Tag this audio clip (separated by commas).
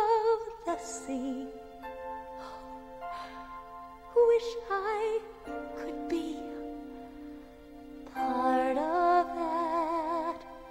Music